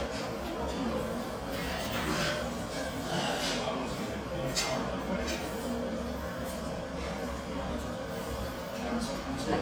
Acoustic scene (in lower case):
restaurant